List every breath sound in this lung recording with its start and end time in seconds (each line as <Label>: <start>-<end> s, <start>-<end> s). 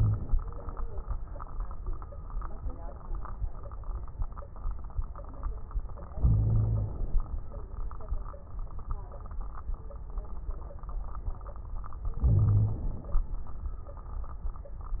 Inhalation: 6.13-7.25 s, 12.22-13.26 s
Wheeze: 6.20-6.96 s, 12.22-12.86 s